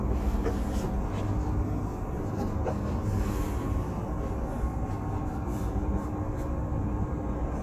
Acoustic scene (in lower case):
bus